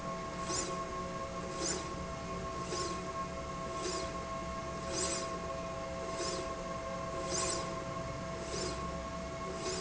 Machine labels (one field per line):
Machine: slide rail